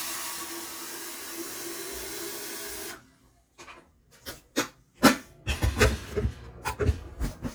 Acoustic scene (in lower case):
kitchen